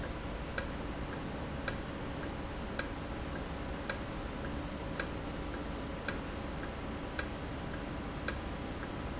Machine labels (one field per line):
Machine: valve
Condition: normal